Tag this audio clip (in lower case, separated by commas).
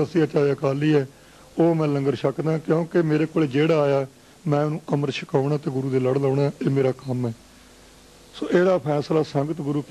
male speech, speech, monologue